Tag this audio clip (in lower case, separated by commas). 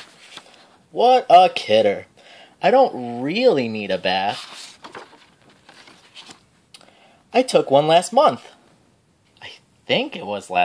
speech